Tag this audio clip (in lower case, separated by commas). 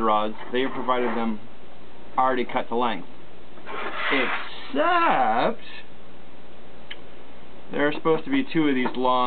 speech